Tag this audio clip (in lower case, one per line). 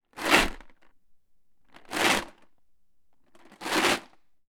rattle